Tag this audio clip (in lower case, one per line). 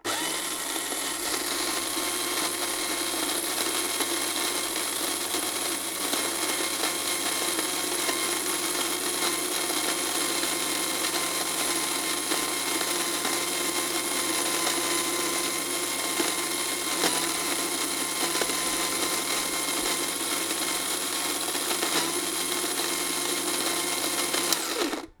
domestic sounds